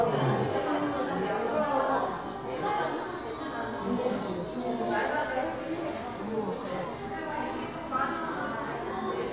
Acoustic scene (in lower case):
crowded indoor space